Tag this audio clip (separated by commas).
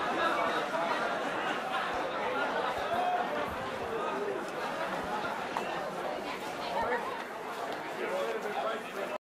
Speech